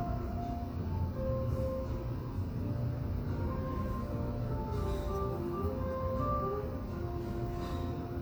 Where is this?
in a cafe